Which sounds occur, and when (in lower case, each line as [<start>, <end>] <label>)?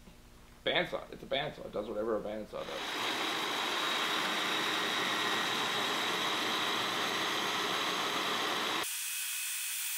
[0.00, 2.55] background noise
[0.62, 2.76] male speech
[2.55, 9.95] circular saw